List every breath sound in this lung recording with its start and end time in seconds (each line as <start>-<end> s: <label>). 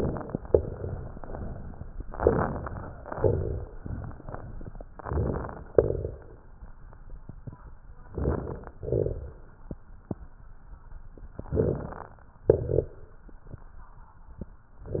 2.09-3.08 s: inhalation
2.09-3.08 s: crackles
3.11-3.74 s: exhalation
3.11-3.74 s: crackles
4.95-5.67 s: inhalation
4.95-5.67 s: crackles
5.71-6.34 s: exhalation
5.71-6.34 s: crackles
8.06-8.79 s: crackles
8.10-8.82 s: inhalation
8.79-9.51 s: exhalation
8.82-9.45 s: crackles
11.48-12.20 s: inhalation
11.48-12.20 s: crackles
12.50-13.23 s: exhalation
12.50-13.23 s: crackles